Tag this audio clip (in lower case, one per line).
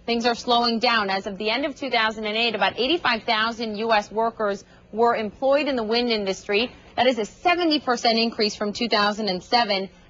speech